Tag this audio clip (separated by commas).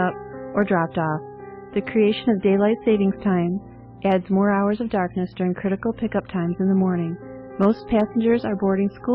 Speech, Music